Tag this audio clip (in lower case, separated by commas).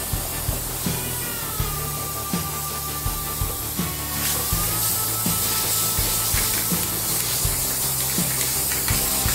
music, spray